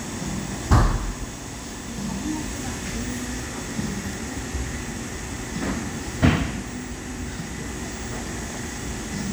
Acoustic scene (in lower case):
cafe